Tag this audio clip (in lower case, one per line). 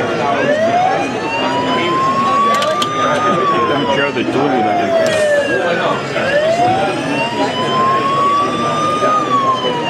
truck
vehicle
speech